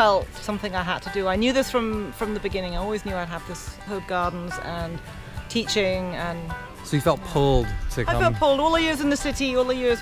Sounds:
Music, Speech

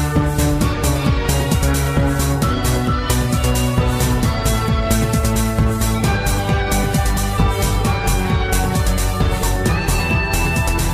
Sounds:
Music

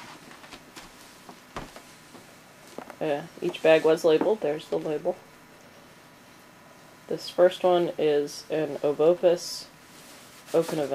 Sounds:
inside a small room, Speech

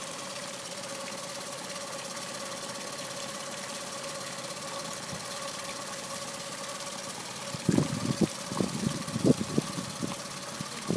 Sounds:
Engine

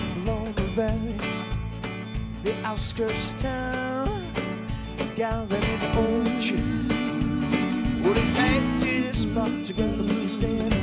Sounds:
Music

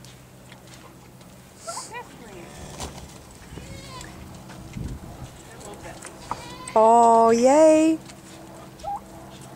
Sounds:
livestock, Goat, Speech, Animal

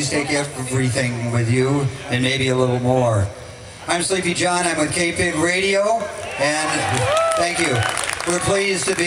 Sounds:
Speech

